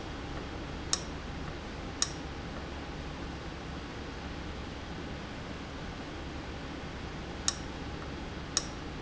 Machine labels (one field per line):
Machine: valve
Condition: abnormal